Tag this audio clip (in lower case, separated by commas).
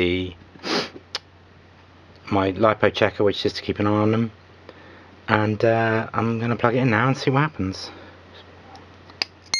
speech, inside a small room